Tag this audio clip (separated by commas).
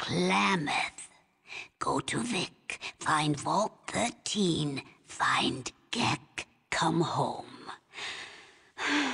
Female speech, monologue, Speech, Speech synthesizer